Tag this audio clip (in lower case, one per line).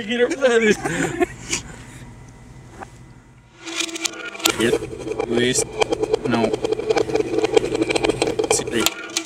speech